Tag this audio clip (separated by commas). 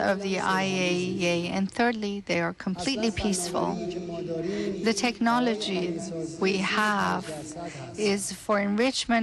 Speech, Speech synthesizer, Female speech, Male speech